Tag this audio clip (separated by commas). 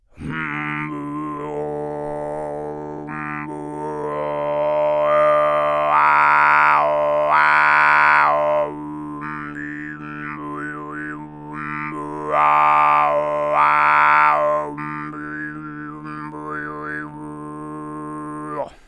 Human voice, Singing